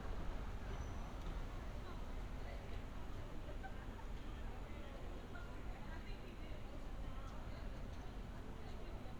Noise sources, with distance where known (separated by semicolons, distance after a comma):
person or small group talking